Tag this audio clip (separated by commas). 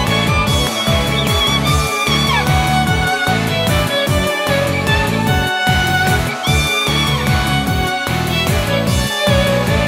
Music, Violin, Musical instrument